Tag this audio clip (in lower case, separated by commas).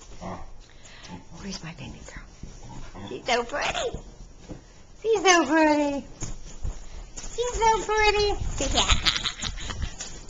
dog, animal, domestic animals, speech